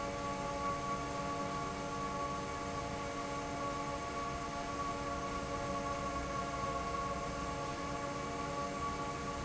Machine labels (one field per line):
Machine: fan